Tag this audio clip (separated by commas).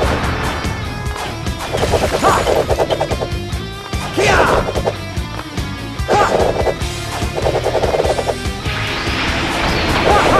Music